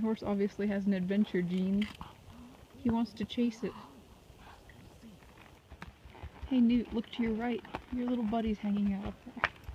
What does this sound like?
A woman speaking with a thud sound